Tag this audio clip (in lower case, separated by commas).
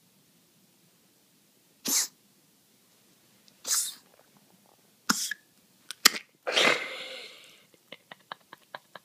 people coughing, animal, dog, cough, pets